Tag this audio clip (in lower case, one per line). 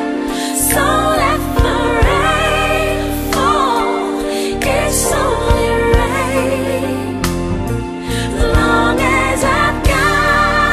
music
singing